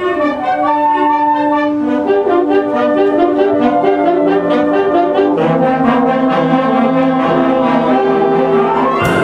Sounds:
Classical music, Trumpet, Brass instrument, Trombone, Music

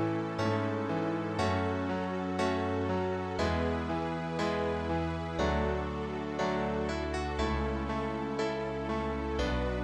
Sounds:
Music

